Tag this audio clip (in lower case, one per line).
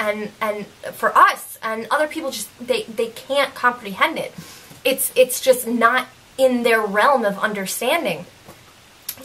speech